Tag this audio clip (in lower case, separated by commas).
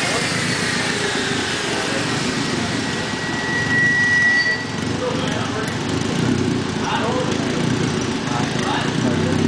speech